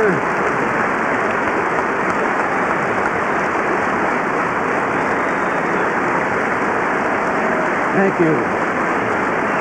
Applause followed by man starting a speech